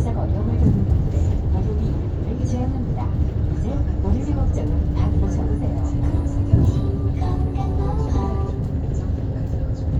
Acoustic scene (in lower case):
bus